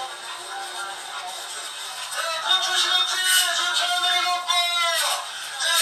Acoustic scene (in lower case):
crowded indoor space